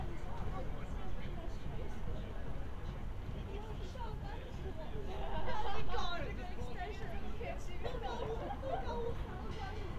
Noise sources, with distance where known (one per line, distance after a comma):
person or small group talking